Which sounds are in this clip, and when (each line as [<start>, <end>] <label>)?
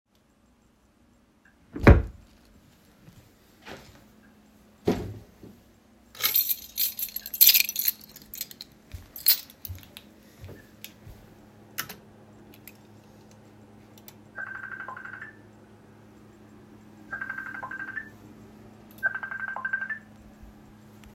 [1.59, 2.35] wardrobe or drawer
[4.83, 5.26] wardrobe or drawer
[6.07, 10.05] keys
[14.27, 15.47] phone ringing
[16.95, 18.27] phone ringing
[18.95, 20.09] phone ringing